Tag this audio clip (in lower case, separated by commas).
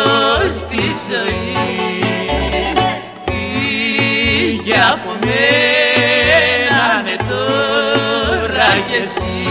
music, radio